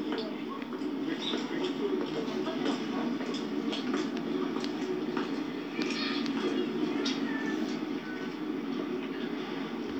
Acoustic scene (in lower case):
park